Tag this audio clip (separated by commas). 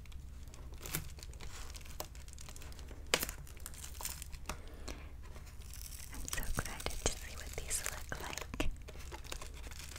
ripping paper